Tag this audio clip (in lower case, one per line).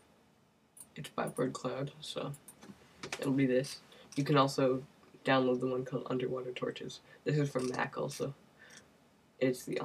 speech